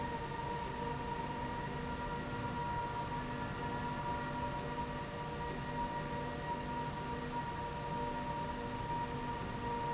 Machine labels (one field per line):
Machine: slide rail